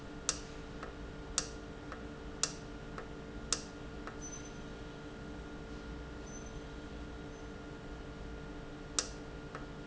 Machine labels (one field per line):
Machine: valve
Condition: normal